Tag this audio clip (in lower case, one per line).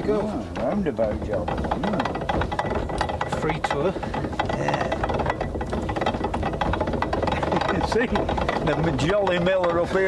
speech